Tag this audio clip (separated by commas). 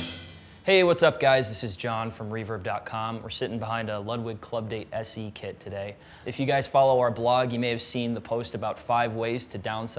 Musical instrument, Speech, Music